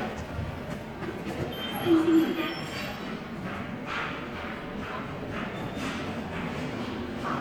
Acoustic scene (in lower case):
subway station